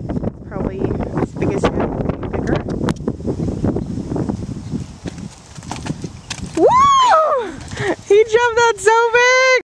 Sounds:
Horse, Speech, Animal, Clip-clop

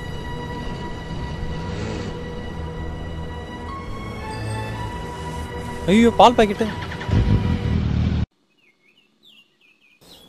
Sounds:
Speech, Music, outside, urban or man-made

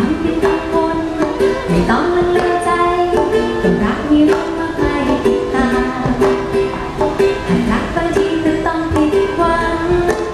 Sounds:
Ukulele, inside a large room or hall, Music

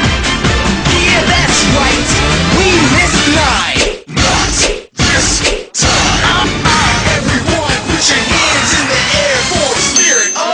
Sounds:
Music

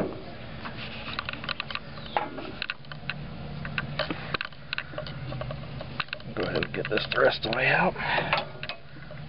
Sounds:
Speech, outside, rural or natural

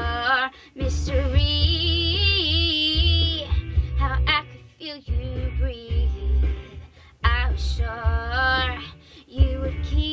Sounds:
Music, Female singing

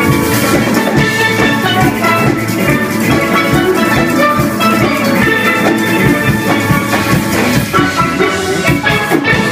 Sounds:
Musical instrument, Steelpan, Drum, Music

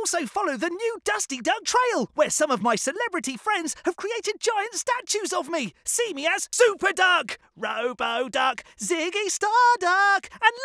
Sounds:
Speech

